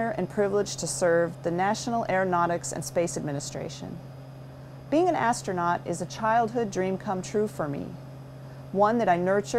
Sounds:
Narration, Speech, woman speaking

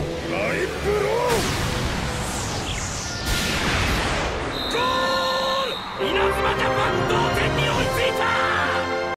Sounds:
Music, Speech

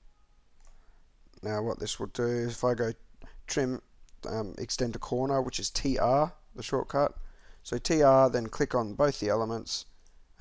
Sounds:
Speech

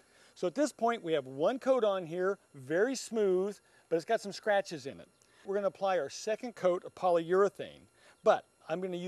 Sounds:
Speech

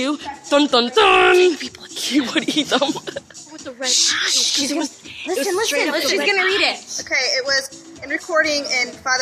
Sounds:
Female speech, Electronic music, House music, Music, Speech

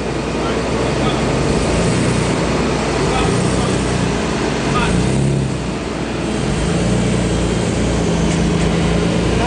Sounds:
Speech, Car, Vehicle

